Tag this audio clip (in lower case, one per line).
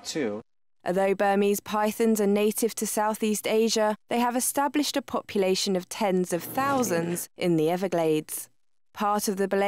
speech